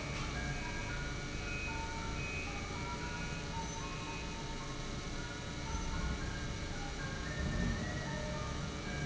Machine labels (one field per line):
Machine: pump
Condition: normal